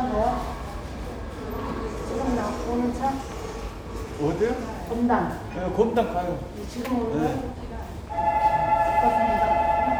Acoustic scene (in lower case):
subway station